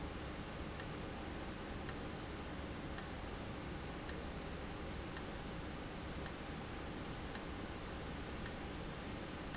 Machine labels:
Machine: valve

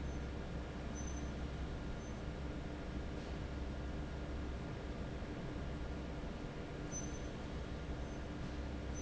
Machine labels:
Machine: fan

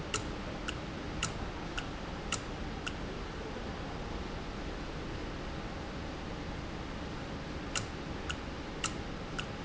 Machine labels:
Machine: valve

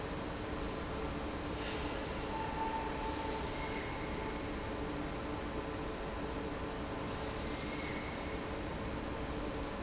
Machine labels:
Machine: fan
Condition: abnormal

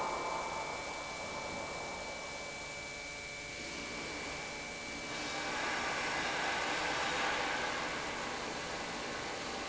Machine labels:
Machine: pump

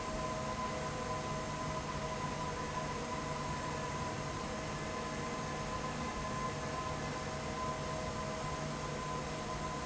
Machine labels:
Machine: fan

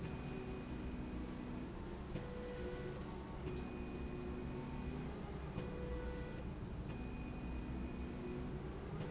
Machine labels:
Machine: slide rail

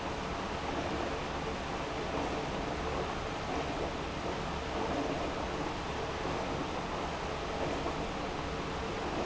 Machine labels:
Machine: pump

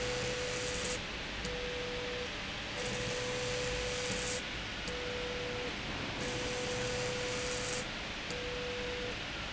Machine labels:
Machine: slide rail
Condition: abnormal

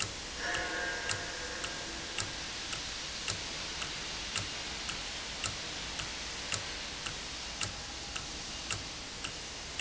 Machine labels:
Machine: valve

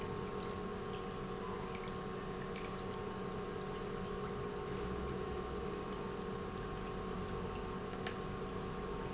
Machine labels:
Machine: pump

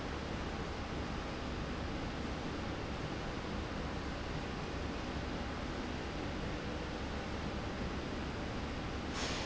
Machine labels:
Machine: slide rail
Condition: normal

